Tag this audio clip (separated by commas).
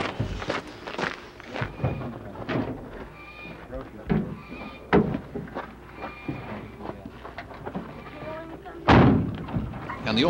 Animal, Speech